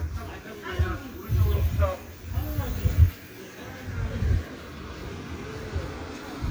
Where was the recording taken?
in a residential area